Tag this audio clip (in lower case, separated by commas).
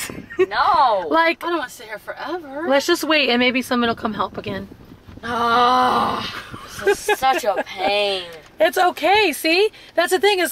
outside, rural or natural, speech